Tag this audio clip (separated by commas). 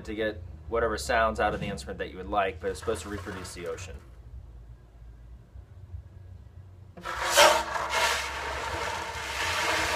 Speech, inside a large room or hall